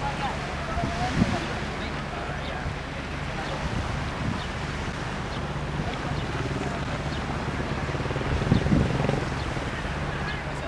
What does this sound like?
Water crashing with wind